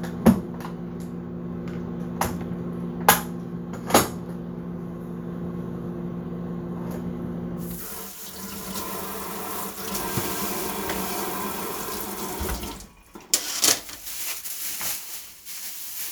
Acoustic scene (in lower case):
kitchen